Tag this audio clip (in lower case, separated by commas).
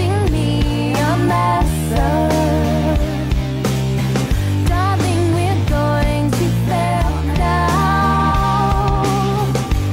music